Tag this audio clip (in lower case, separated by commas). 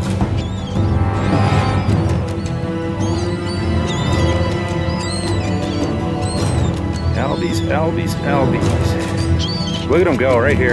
music, speech